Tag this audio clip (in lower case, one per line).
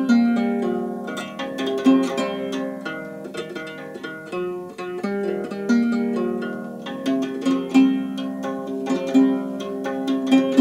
music